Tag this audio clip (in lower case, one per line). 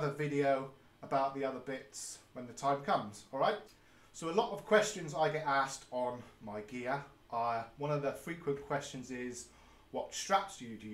speech